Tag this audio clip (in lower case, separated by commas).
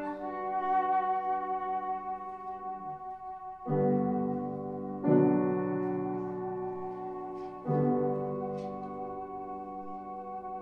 piano, music